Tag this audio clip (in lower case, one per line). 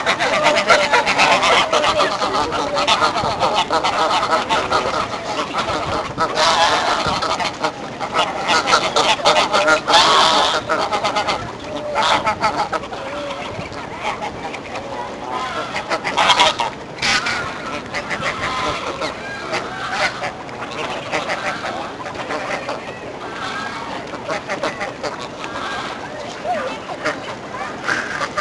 livestock
animal
fowl